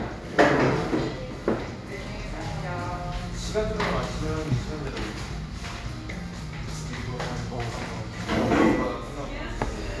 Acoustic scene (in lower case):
cafe